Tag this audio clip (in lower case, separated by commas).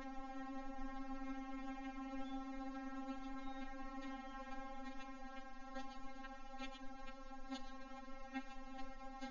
music